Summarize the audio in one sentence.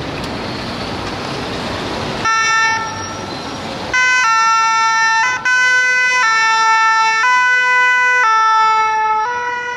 Emergency vehicle sirens wailing